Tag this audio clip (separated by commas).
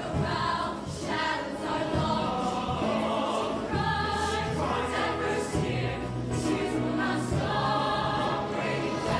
Music